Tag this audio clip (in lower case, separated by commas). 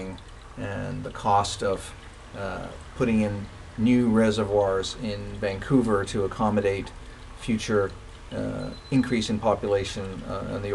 speech, stream